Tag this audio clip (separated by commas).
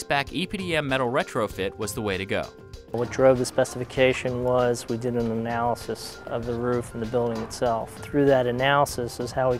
Music, Speech